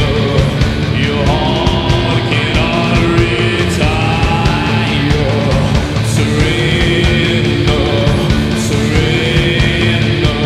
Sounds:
Music

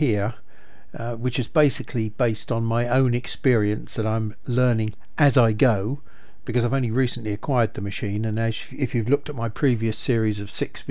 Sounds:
Speech

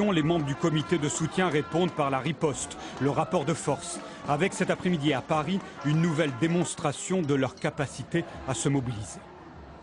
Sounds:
Speech, Music

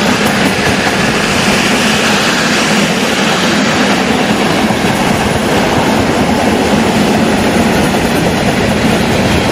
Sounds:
Vehicle, Rail transport, Railroad car, Train

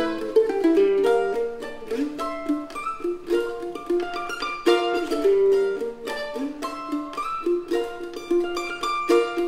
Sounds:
playing mandolin

